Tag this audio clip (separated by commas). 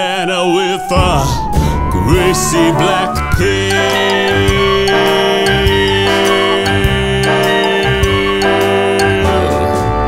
Singing